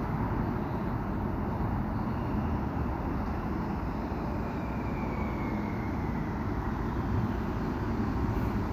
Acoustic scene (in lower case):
street